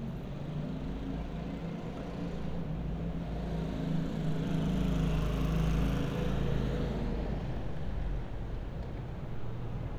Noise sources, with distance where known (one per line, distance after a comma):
engine of unclear size, far